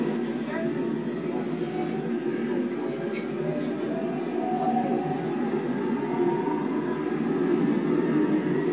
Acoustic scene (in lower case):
subway train